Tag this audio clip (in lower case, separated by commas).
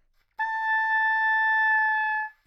musical instrument, music, wind instrument